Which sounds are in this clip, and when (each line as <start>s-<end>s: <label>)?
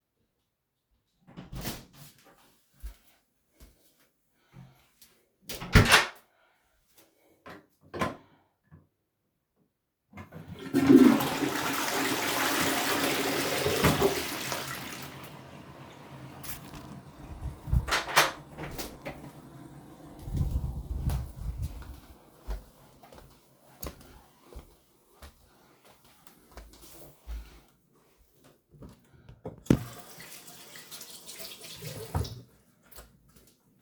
0.5s-3.7s: door
2.8s-5.5s: footsteps
4.9s-8.4s: door
10.0s-15.6s: toilet flushing
17.8s-20.8s: door
20.2s-29.2s: footsteps
29.7s-32.9s: running water